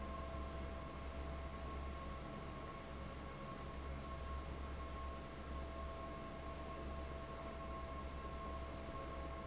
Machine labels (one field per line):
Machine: fan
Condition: abnormal